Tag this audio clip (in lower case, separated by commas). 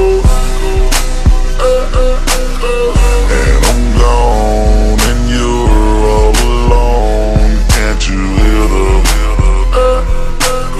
music, echo